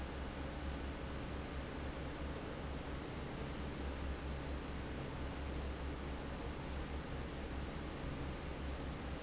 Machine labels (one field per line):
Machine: fan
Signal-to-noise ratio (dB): 0 dB